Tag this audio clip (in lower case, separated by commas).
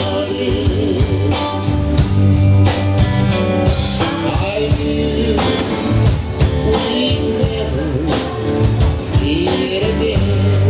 music